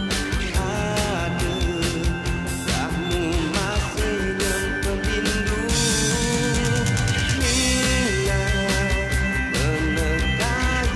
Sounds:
Music

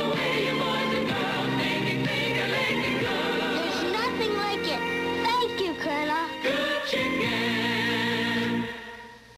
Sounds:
Music, Speech

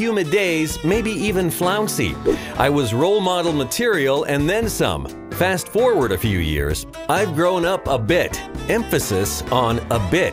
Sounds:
Speech, Music

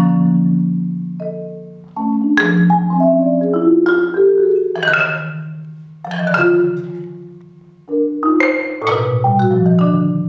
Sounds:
Percussion, Vibraphone, Music, Musical instrument, playing vibraphone

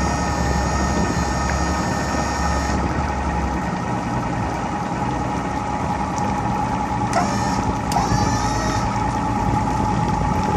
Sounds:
Vehicle, speedboat

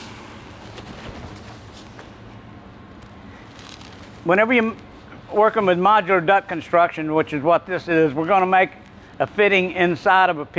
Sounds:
Speech

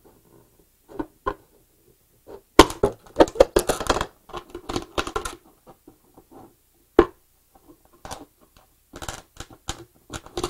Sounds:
inside a small room

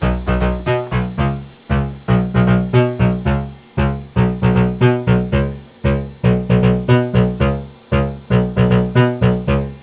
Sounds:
Music, Sampler

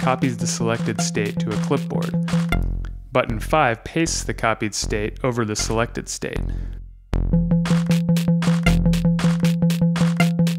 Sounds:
Speech

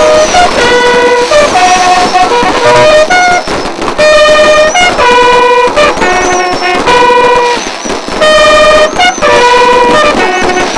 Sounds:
Music

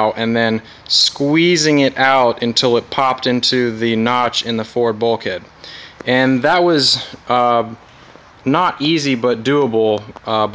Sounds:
Speech

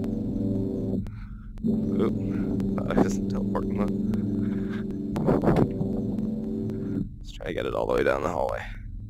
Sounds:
Speech, Music, Pulse

